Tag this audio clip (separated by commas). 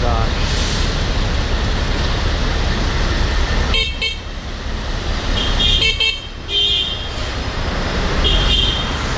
vehicle horn